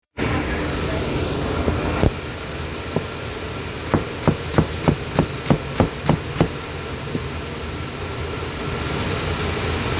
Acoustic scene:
kitchen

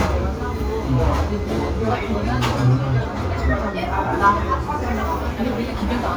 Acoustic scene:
restaurant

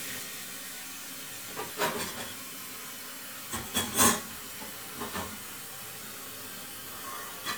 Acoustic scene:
kitchen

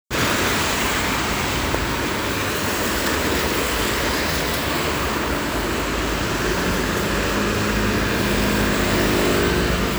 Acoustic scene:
street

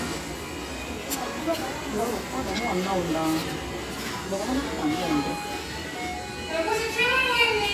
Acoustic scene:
restaurant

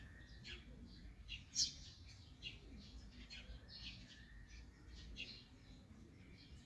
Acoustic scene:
park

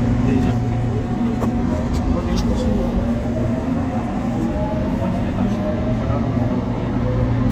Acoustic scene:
subway train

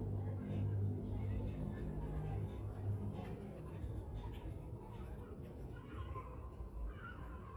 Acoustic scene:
residential area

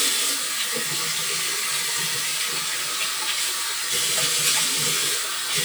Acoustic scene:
restroom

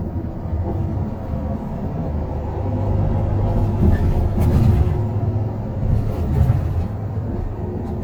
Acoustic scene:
bus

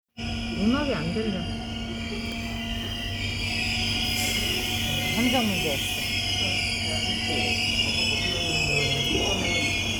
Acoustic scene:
subway station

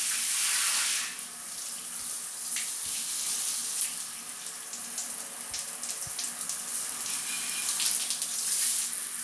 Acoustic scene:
restroom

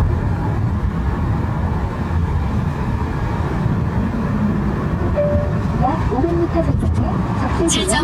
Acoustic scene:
car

